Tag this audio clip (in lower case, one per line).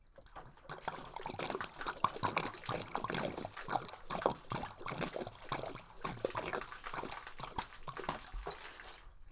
liquid
splatter